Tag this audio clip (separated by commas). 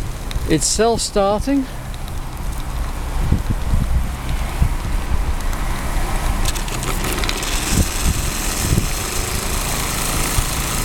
Speech